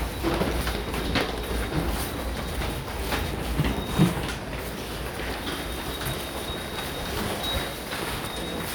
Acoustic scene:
subway station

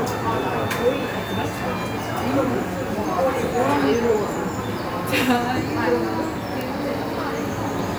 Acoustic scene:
cafe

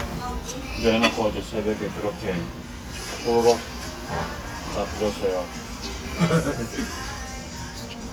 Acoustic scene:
restaurant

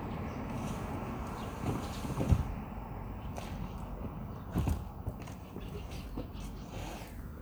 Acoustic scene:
residential area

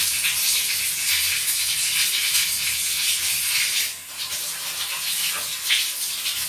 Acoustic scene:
restroom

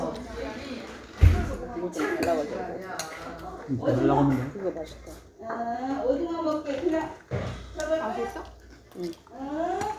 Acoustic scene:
restaurant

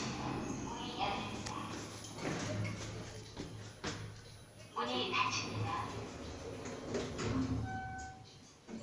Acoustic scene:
elevator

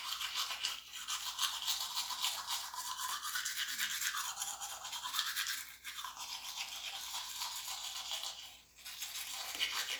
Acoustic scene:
restroom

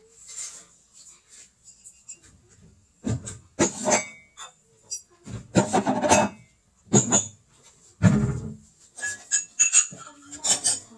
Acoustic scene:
kitchen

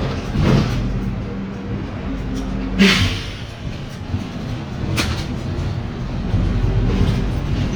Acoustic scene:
bus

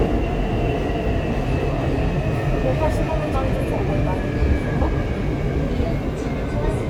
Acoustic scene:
subway train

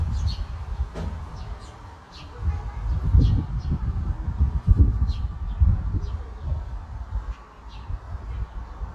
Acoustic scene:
park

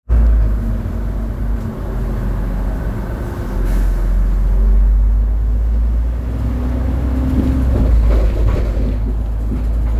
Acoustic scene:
bus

